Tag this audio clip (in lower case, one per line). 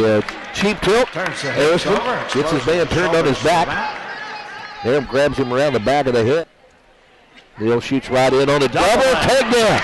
speech